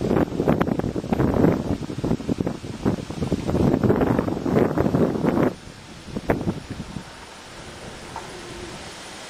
Leaves rustling and wind blowing